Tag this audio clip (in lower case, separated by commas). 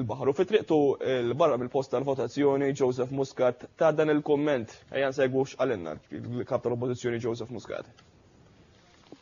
speech